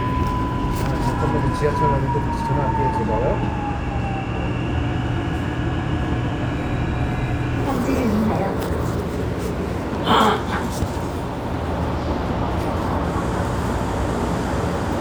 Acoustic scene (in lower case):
subway train